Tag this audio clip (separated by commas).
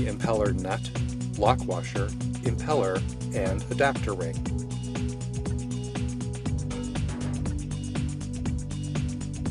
Music, Speech